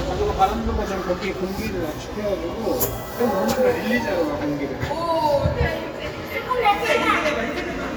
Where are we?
in a crowded indoor space